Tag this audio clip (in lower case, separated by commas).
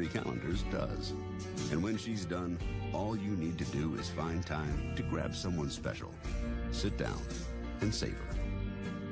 music, speech